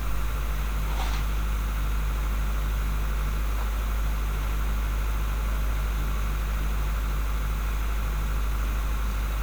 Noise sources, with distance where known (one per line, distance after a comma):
engine of unclear size, near
non-machinery impact, near